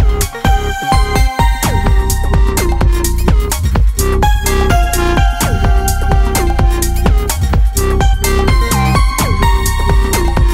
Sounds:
music
electronica

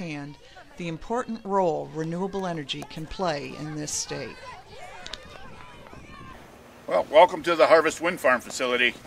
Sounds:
speech

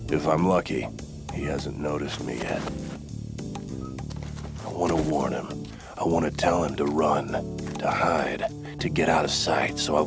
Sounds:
music
speech

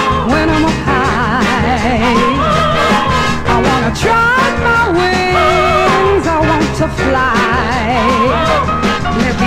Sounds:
music
swing music

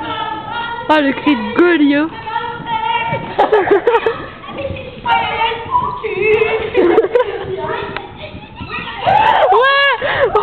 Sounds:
speech

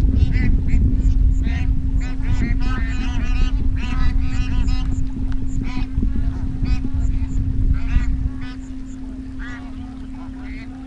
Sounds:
goose honking

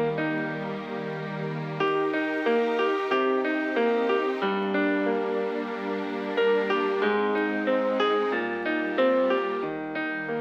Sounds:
music

